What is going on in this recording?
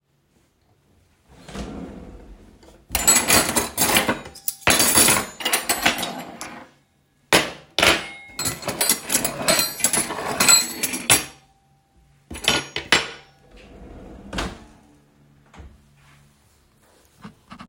I opened and closed a kitchen drawer while searching through utensils. During the scene, cutlery and a keychain made clearly audible sounds.